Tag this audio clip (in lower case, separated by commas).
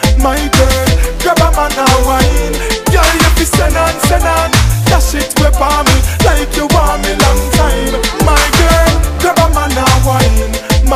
music, afrobeat